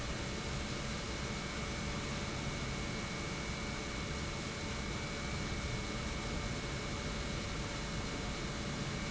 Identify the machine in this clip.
pump